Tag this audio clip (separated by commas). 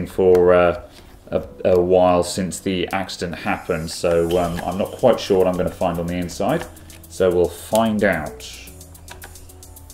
Music, Speech